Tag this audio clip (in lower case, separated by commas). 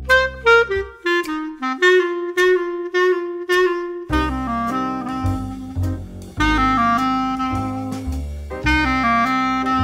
playing clarinet